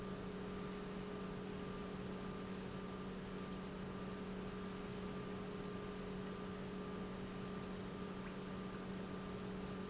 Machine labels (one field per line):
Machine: pump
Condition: normal